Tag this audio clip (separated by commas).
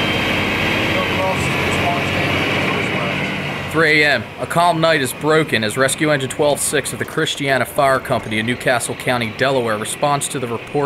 Speech